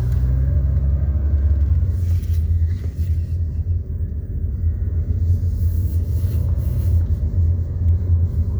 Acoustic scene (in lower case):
car